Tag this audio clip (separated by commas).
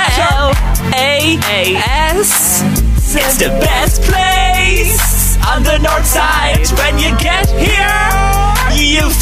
Music